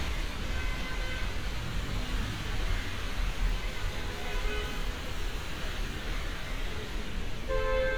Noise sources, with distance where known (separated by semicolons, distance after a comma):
car horn, far